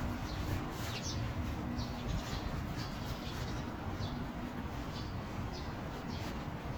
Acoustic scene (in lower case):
park